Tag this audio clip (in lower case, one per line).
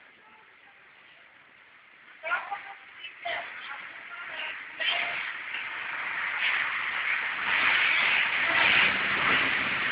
speech